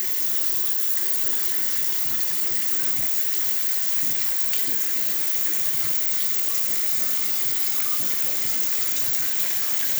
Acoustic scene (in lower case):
restroom